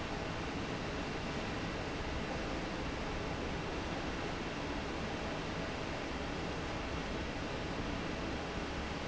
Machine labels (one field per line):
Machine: fan